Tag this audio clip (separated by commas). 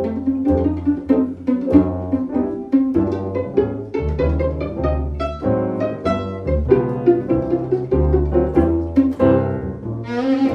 Music, fiddle, Double bass, playing double bass, Piano, Musical instrument